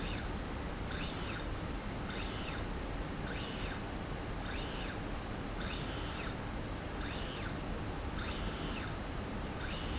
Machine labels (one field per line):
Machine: slide rail